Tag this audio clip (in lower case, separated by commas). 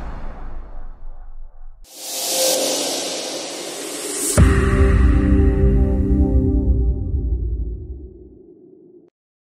music